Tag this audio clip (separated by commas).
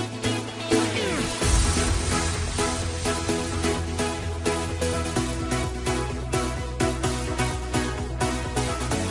Music